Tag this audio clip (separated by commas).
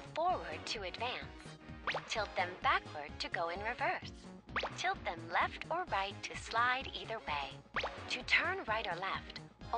Speech